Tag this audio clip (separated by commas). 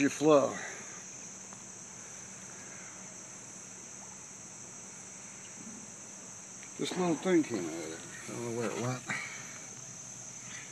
Speech